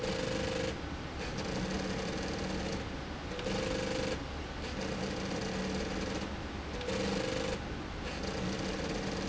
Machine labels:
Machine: slide rail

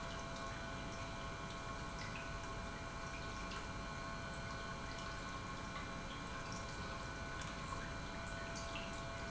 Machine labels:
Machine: pump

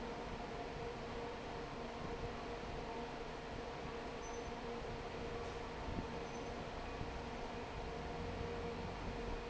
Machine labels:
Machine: fan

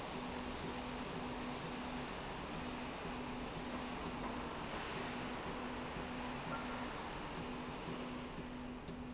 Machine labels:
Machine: slide rail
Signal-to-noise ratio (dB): 0 dB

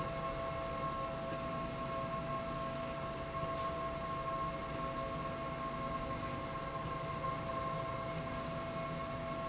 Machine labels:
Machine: slide rail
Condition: normal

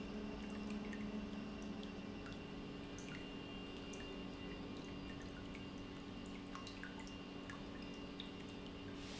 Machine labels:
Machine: pump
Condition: normal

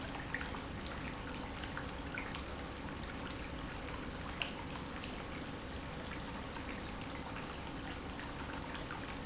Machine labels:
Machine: pump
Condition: normal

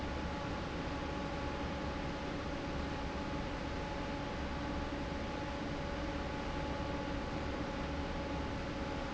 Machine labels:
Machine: fan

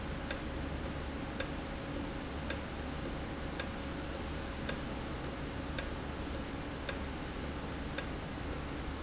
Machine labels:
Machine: valve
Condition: normal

